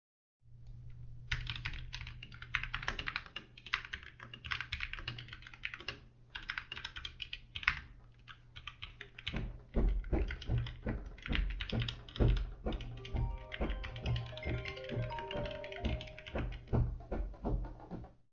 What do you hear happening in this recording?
was typing, my friend go to my(footsteps) and during this my phone start ringing